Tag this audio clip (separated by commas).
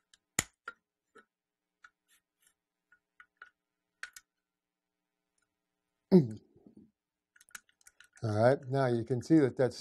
inside a small room, Speech